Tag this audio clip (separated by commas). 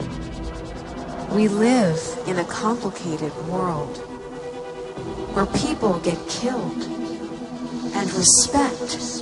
Music, Speech